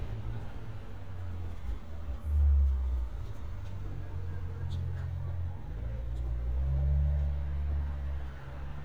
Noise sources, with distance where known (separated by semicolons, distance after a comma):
large-sounding engine